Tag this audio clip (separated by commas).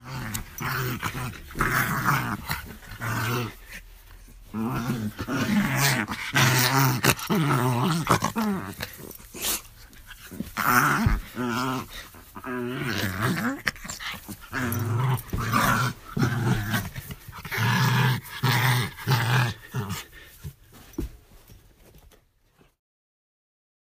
Domestic animals, Animal, Dog, Growling